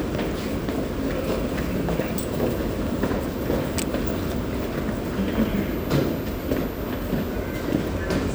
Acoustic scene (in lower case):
subway station